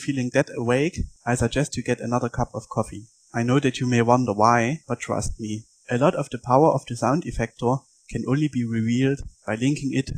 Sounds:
Speech

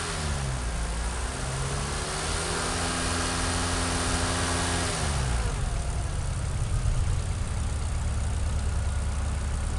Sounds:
Car, Vehicle, Accelerating

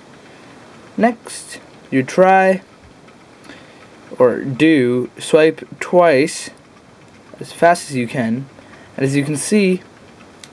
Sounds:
Speech

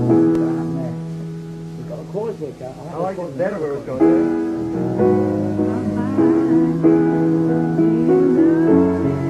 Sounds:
Speech, Music

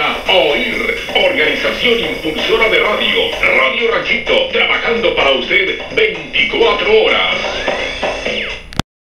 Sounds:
Speech, Radio

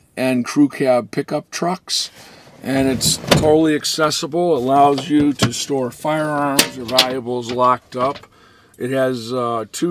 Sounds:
Speech

